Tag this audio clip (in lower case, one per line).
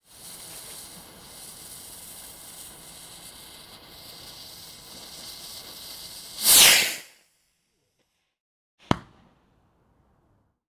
explosion
fireworks